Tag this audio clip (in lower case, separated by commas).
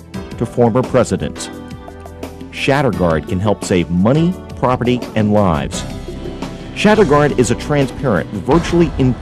speech, music